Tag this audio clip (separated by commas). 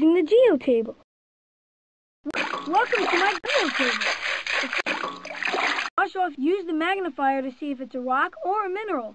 Speech